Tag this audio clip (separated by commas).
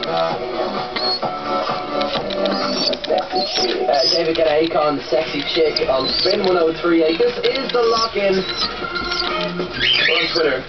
Coo, Speech, Music, Bird, Animal